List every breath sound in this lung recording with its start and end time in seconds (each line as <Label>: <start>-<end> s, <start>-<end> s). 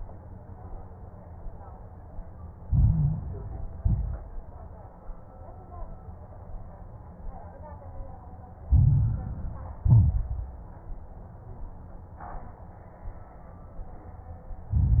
Inhalation: 2.60-3.77 s, 8.64-9.81 s, 14.71-15.00 s
Exhalation: 3.78-4.41 s, 9.86-10.50 s
Crackles: 2.60-3.77 s, 3.78-4.41 s, 8.64-9.81 s, 9.86-10.50 s, 14.71-15.00 s